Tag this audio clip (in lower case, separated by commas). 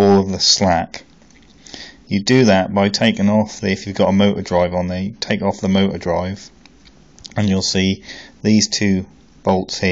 speech